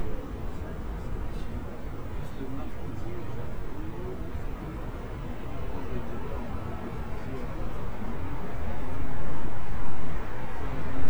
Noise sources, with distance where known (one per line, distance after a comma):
person or small group talking, near